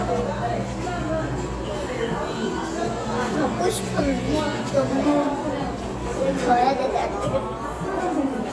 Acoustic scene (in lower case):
cafe